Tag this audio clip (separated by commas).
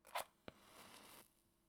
Fire